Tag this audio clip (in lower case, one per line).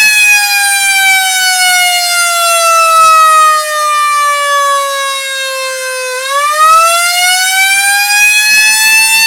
siren